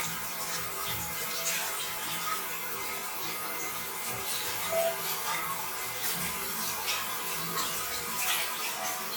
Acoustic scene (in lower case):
restroom